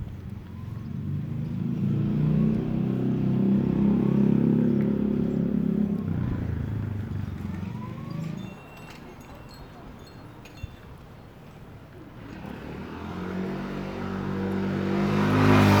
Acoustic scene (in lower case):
residential area